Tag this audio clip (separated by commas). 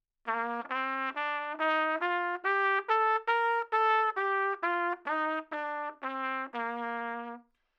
Trumpet, Musical instrument, Brass instrument, Music